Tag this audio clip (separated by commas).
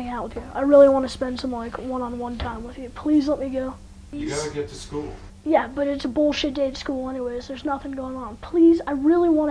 Speech